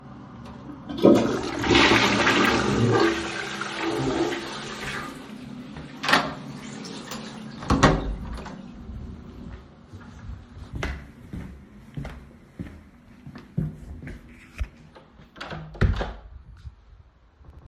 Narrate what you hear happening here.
I was already in the toilet, flushed the water, turned off the light, left the toilet, walked through the kitchen and the hallway, and went into my room.